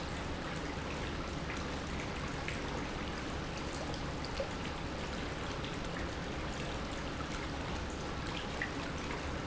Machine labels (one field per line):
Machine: pump